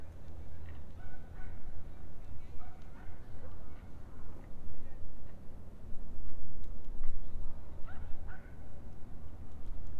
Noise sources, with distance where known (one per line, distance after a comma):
person or small group talking, far
dog barking or whining, far